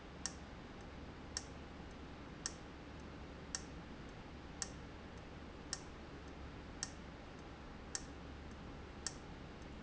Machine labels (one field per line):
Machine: valve